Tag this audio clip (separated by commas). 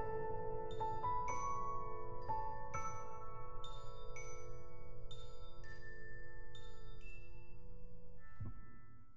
Music, Music for children